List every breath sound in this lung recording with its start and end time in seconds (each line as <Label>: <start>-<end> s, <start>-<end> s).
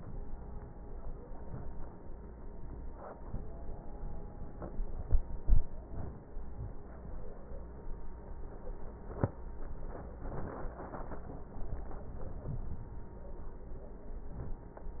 Inhalation: 1.30-1.83 s, 14.31-14.84 s